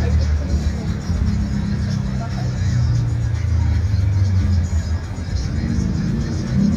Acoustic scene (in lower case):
street